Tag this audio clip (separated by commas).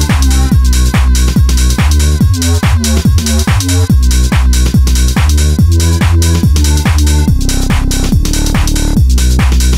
Music